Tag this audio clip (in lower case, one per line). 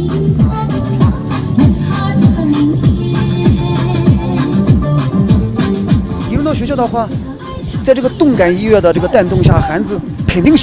people shuffling